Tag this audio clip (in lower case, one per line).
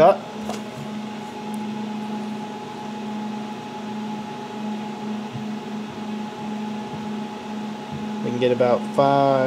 speech